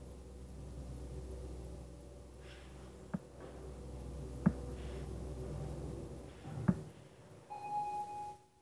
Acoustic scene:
elevator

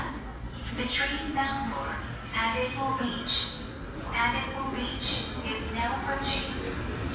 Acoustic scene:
subway station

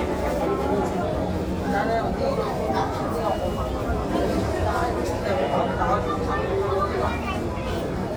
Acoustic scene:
crowded indoor space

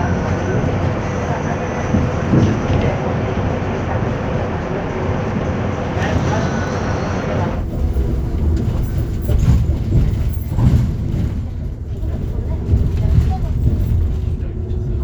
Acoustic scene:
bus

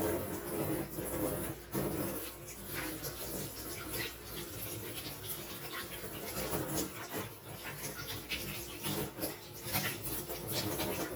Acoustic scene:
kitchen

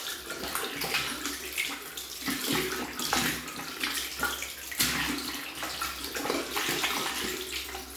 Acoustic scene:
restroom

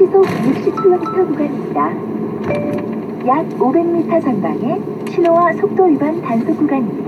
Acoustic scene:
car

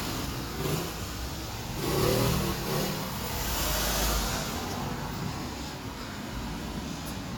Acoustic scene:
street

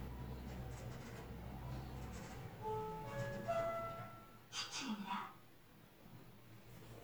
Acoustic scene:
elevator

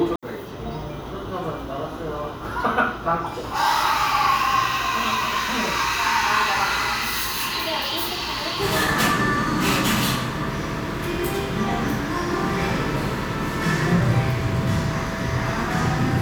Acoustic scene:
cafe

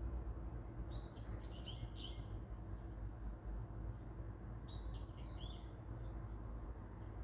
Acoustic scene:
park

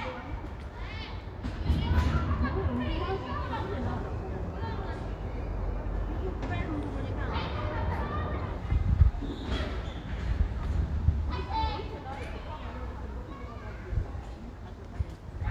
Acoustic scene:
residential area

